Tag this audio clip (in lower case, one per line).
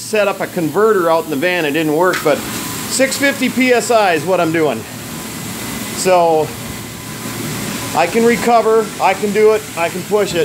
inside a small room
speech